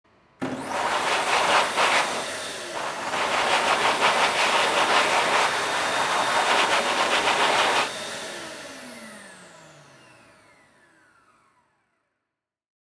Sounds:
Domestic sounds

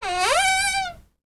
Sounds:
Door, Cupboard open or close, Domestic sounds

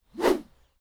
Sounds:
swoosh

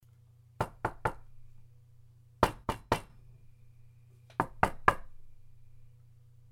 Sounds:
Knock, Door, Domestic sounds

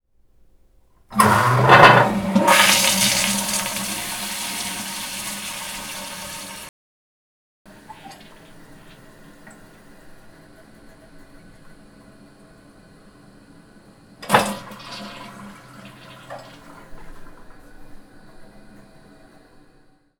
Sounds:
Domestic sounds, Water tap

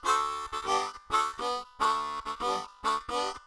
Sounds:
Music, Musical instrument, Harmonica

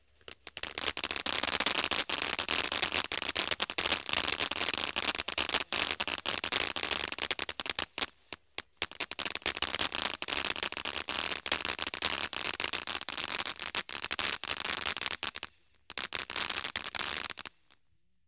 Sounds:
Explosion, Fireworks

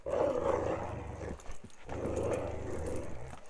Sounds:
pets, Animal, Dog

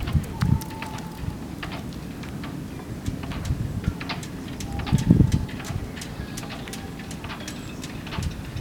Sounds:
Water vehicle, Wind, Vehicle

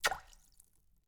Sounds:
Liquid, splatter

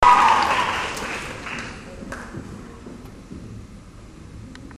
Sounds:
Crowd, Applause, Human group actions

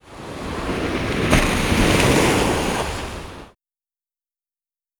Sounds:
surf, Ocean, Water

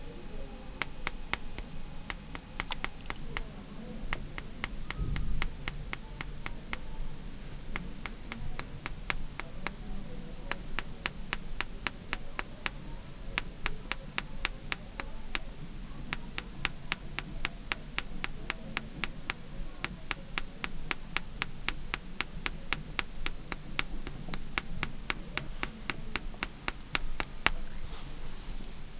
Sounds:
Tap

